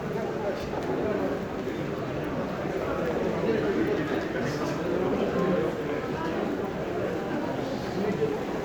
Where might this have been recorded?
in a crowded indoor space